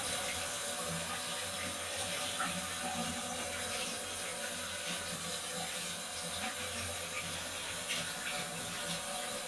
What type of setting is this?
restroom